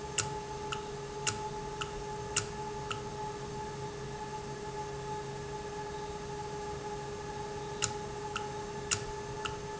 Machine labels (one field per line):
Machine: valve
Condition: normal